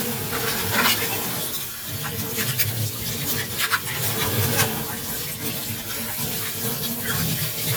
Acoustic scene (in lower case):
kitchen